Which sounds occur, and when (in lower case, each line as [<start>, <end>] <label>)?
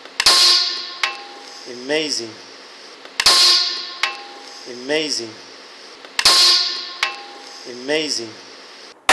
[0.00, 9.12] mechanisms
[1.44, 1.53] clicking
[6.02, 6.10] tick
[7.67, 8.38] man speaking